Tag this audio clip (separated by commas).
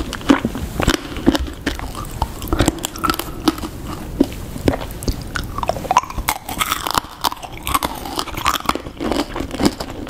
people eating crisps